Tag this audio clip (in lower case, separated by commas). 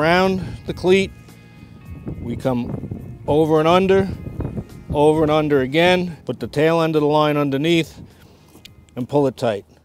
speech, music